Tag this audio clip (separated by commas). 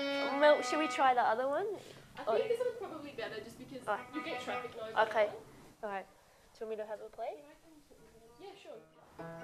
Music, Speech